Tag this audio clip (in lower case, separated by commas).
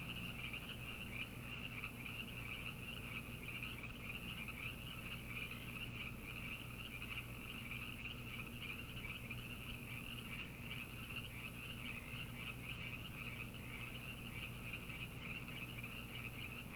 frog, animal, wild animals